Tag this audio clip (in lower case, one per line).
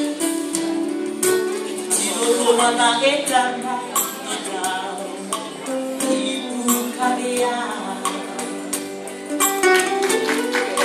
female singing
music